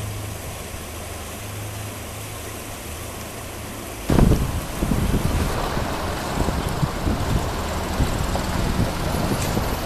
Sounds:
vehicle, truck

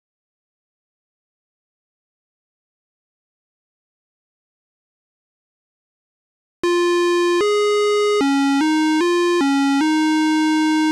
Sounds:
silence

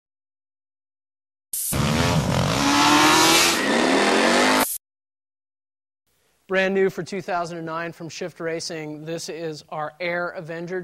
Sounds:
motorcycle, vehicle, speech

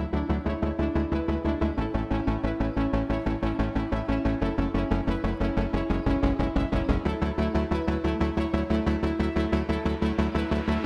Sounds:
playing synthesizer, synthesizer, music

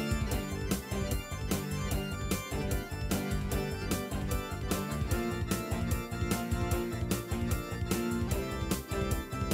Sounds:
music

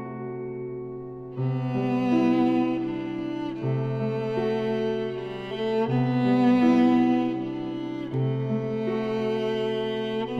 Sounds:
music

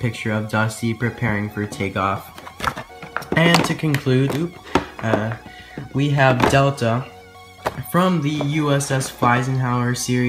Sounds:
speech, music

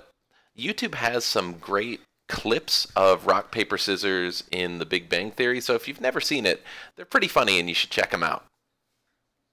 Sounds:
speech

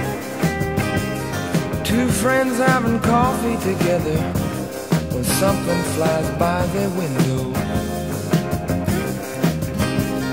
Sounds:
psychedelic rock, music

